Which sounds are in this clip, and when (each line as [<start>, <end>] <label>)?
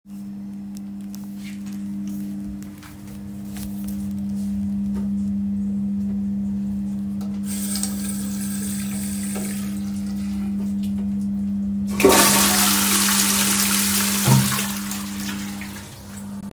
[7.44, 11.98] running water
[11.93, 16.19] toilet flushing